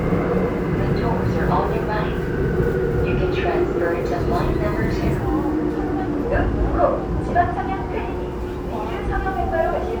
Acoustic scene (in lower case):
subway train